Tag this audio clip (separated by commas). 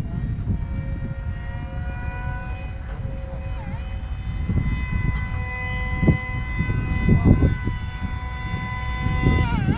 Speech